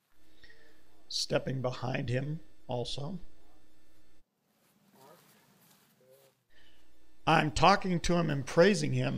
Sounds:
speech

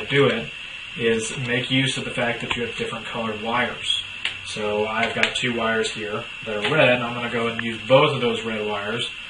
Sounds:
inside a small room, speech

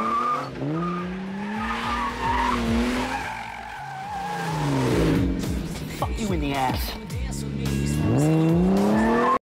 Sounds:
motor vehicle (road), car, car passing by, music, vehicle

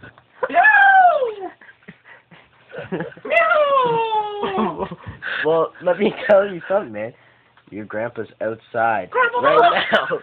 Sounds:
speech

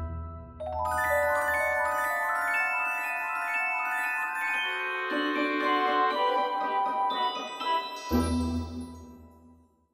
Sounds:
glockenspiel, mallet percussion, xylophone

